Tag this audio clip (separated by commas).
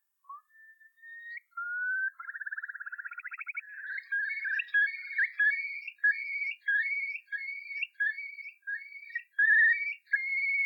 bird squawking